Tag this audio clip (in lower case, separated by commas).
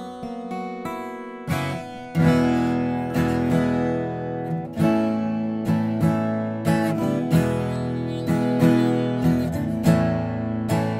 acoustic guitar, plucked string instrument, musical instrument, guitar, strum, music